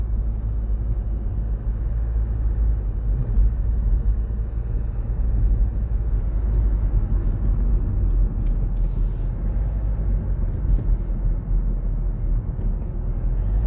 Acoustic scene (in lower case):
car